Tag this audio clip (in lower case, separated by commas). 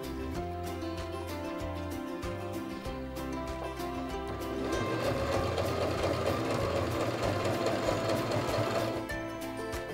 using sewing machines